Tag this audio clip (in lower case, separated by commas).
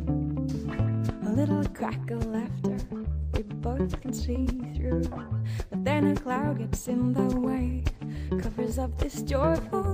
music